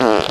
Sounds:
fart

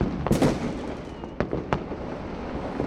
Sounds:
fireworks
explosion

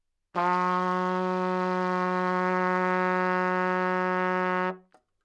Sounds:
brass instrument
musical instrument
trumpet
music

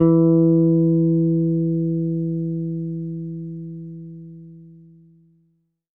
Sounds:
plucked string instrument
bass guitar
guitar
music
musical instrument

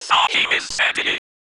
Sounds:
human voice
whispering

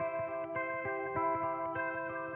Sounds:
electric guitar
guitar
music
plucked string instrument
musical instrument

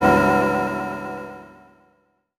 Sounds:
music
organ
keyboard (musical)
musical instrument

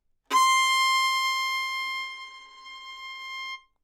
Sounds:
music
musical instrument
bowed string instrument

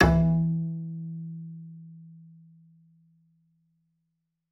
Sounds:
musical instrument
bowed string instrument
music

